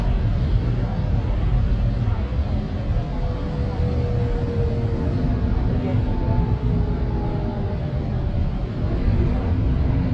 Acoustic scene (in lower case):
bus